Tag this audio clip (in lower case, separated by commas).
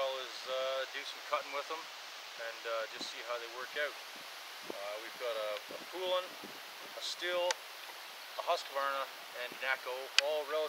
speech